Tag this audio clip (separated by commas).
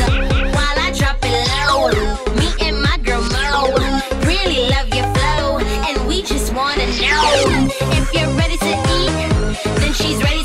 Music